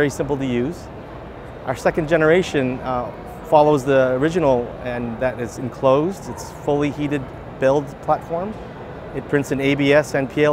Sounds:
speech

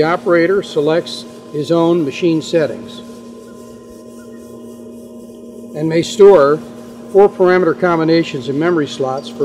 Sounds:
speech

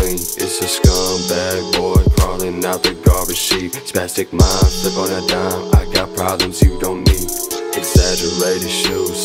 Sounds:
music

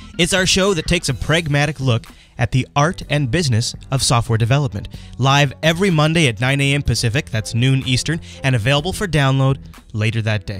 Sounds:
music, speech

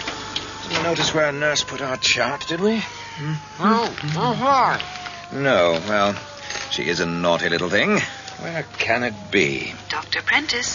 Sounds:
speech

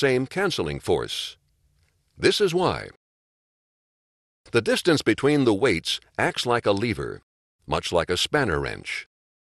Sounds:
speech

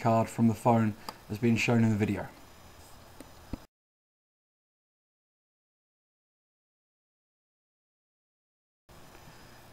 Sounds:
speech

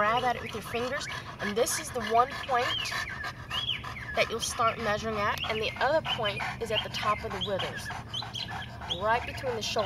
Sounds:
pets, animal, dog, speech

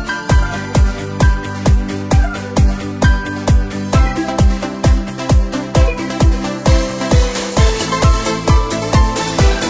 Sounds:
music

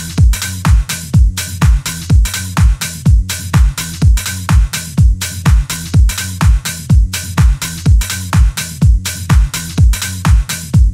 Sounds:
music, sampler

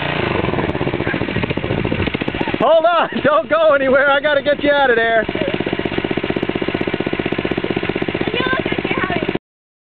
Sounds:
speech

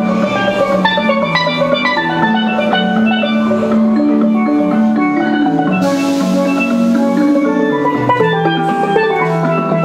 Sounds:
music, steelpan, percussion

